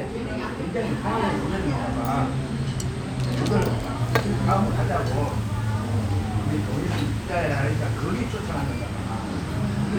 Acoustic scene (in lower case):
restaurant